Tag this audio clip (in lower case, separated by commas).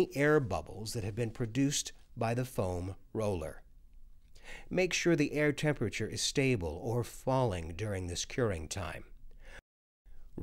speech